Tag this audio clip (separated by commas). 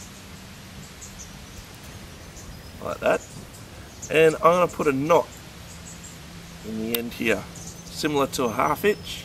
Speech